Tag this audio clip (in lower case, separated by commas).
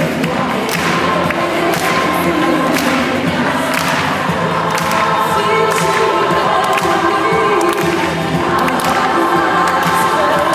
choir, music